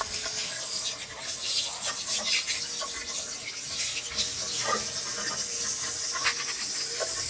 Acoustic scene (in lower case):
restroom